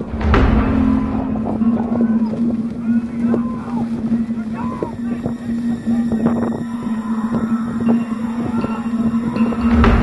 Suspenseful music playing and people screaming